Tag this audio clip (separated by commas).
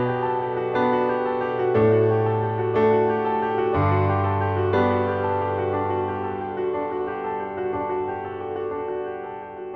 Music